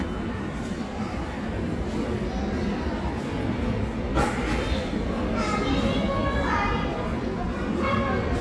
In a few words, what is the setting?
subway station